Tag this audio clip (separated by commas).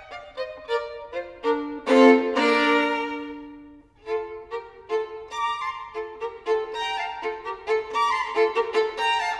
fiddle, playing violin, Musical instrument, Music